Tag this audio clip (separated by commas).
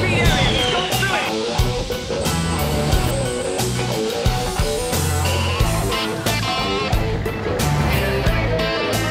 Speech, Music